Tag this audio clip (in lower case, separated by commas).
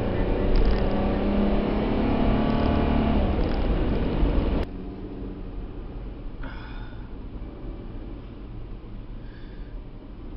vehicle, car